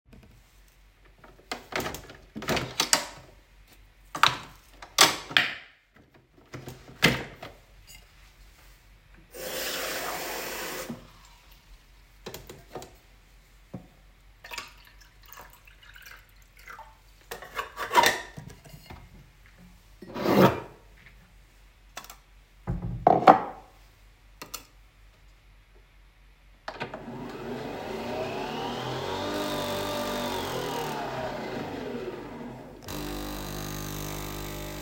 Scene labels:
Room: kitchen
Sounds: coffee machine, running water, cutlery and dishes

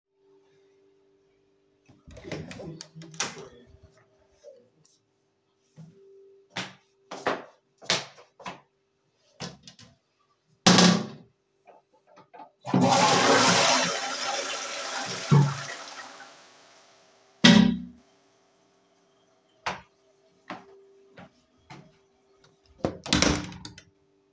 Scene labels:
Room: lavatory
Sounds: door (more than once), light switch, footsteps, toilet flushing

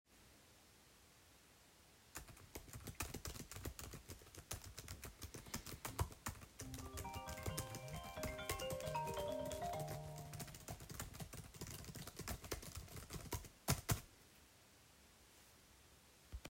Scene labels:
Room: office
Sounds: keyboard typing, phone ringing

